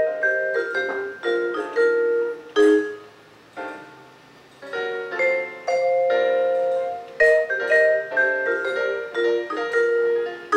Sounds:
music, vibraphone

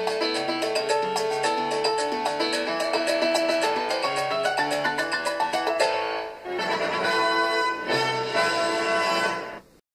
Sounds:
music

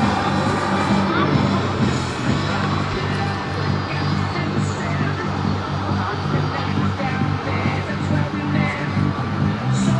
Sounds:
speech, vehicle, revving, music

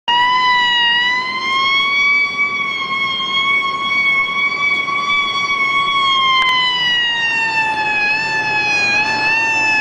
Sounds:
fire engine, emergency vehicle, vehicle

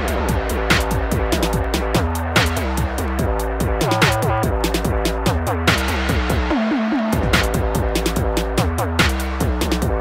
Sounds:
music, drum and bass

